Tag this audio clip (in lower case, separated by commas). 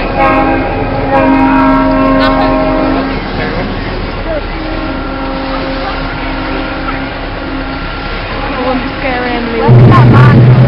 train horn